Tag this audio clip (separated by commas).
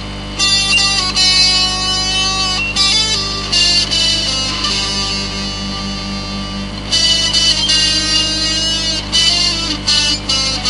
Music, Plucked string instrument, playing electric guitar, Guitar, Electric guitar, Musical instrument